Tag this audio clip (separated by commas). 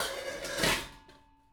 dishes, pots and pans, home sounds